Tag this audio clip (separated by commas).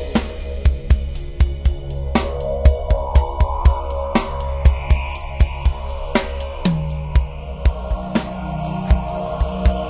Music, Guitar, Plucked string instrument, Musical instrument